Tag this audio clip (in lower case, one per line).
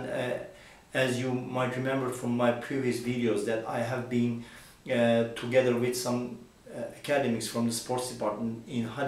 speech